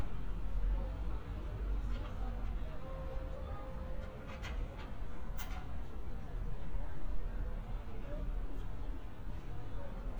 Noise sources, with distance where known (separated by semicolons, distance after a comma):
background noise